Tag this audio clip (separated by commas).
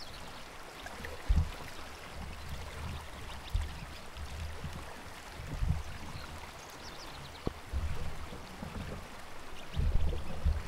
canoe, Boat